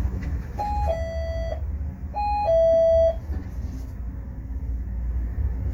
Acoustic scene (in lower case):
bus